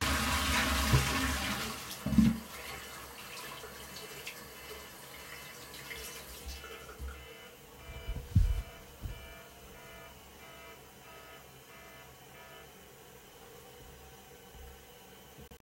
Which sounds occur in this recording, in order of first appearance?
toilet flushing